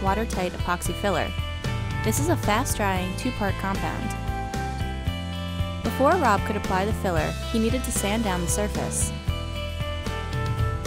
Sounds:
music
speech

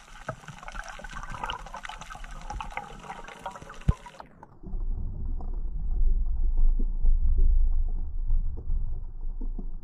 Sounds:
underwater bubbling

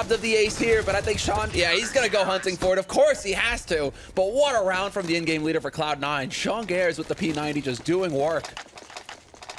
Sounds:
speech

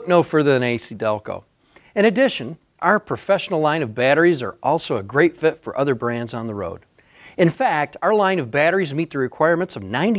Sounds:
speech

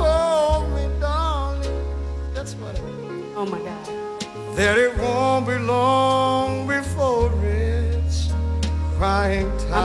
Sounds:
music
speech

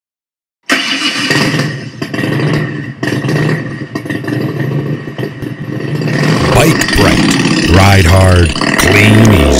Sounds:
speech
vehicle
medium engine (mid frequency)
motorcycle

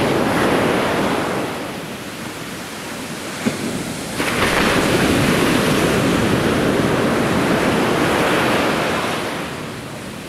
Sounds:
outside, rural or natural

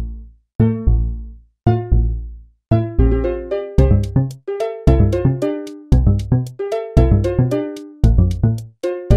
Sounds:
music

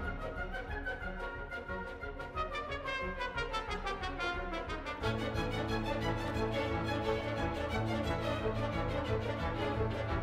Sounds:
orchestra
music

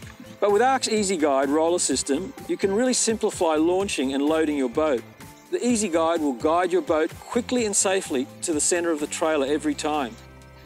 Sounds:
music
speech

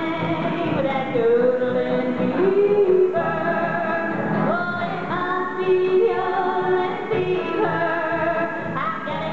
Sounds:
musical instrument
singing
music
yodeling
country
bowed string instrument

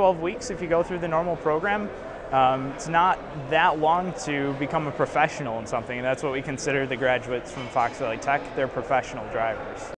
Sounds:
speech

